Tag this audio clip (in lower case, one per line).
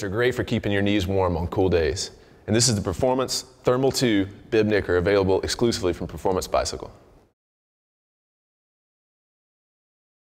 speech